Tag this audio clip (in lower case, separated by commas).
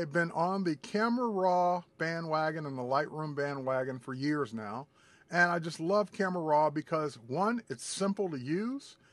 speech